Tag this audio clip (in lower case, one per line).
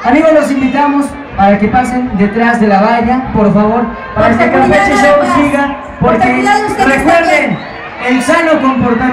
speech